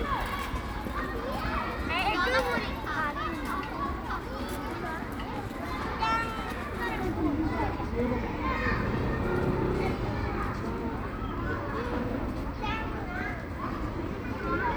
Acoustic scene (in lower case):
park